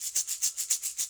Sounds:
musical instrument, percussion, rattle (instrument), music

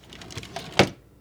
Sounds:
domestic sounds, drawer open or close

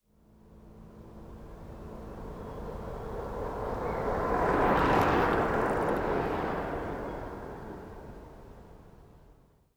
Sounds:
vehicle, bicycle

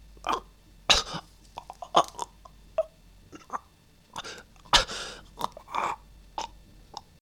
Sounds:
human voice

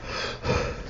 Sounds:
respiratory sounds, breathing

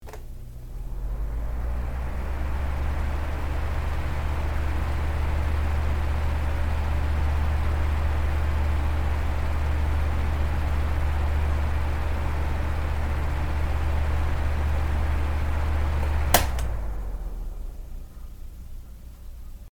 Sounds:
mechanical fan, mechanisms

